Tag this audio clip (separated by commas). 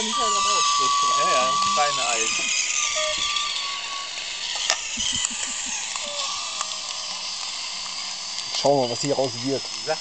Speech, Sound effect